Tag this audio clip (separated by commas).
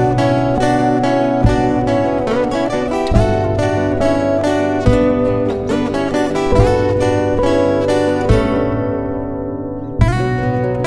Strum, Musical instrument, Guitar, Plucked string instrument, Music, Acoustic guitar